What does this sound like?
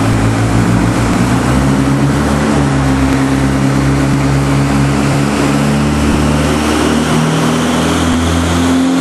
A car accelerating